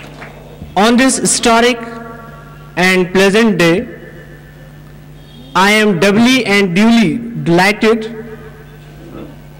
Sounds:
narration, speech

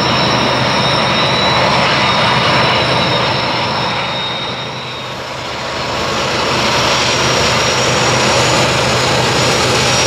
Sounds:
train, vehicle, railroad car, rail transport

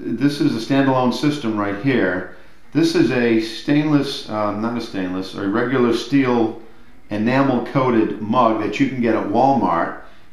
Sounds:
speech

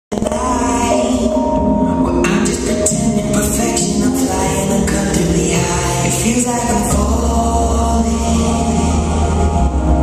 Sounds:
music, inside a large room or hall

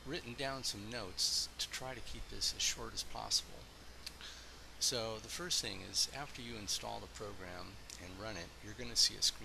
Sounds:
speech

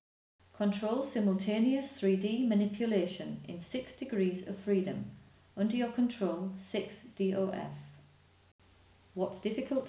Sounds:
speech

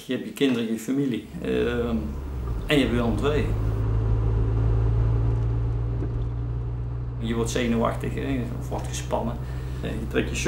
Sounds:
speech, car, vehicle

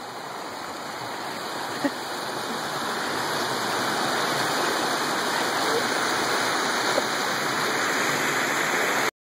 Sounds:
waterfall, waterfall burbling

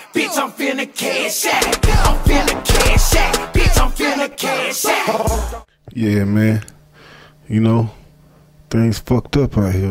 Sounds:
speech, music

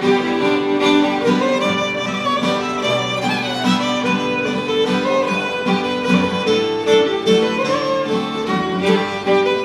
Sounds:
music, fiddle, musical instrument

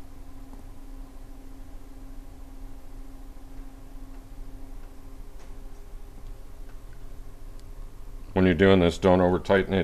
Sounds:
speech

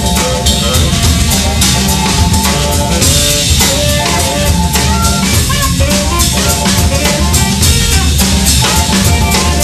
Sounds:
music

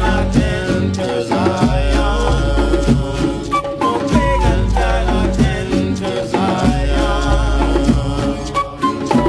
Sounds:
music

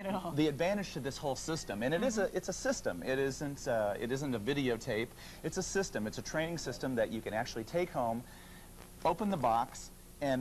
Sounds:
speech

